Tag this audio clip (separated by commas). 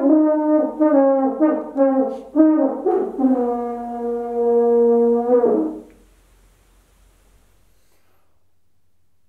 playing french horn